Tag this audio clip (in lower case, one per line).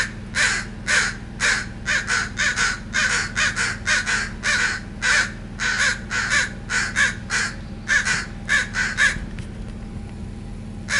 crow cawing